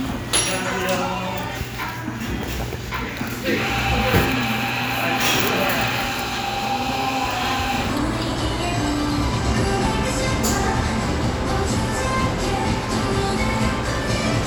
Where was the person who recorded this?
in a cafe